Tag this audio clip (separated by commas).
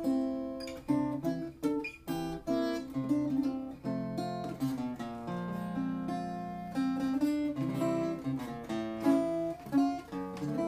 Music